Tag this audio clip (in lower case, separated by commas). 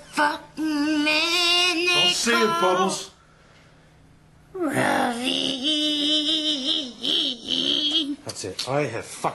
inside a small room, speech